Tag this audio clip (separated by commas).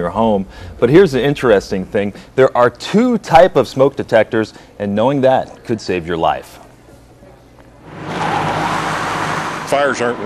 Speech